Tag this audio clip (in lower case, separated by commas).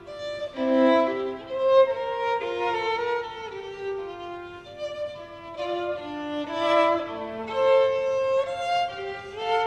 musical instrument, violin, music